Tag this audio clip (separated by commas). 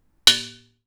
dishes, pots and pans, Domestic sounds